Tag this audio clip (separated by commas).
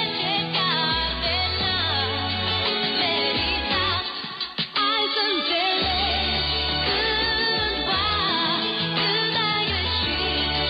Music